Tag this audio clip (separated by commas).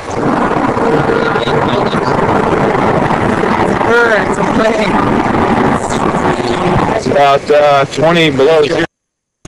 Speech